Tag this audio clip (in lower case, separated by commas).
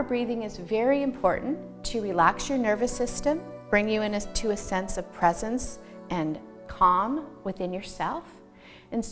speech, music